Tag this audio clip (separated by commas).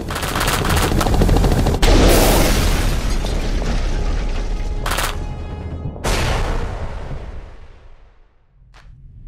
Boom, Music